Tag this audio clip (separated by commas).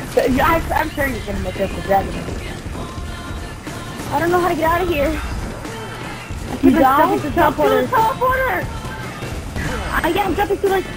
Music, Speech